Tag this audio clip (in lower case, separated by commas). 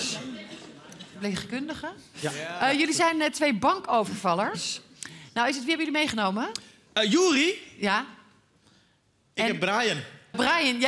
speech